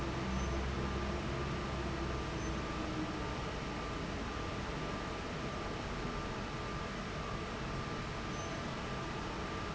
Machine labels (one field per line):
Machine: fan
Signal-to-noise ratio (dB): -6 dB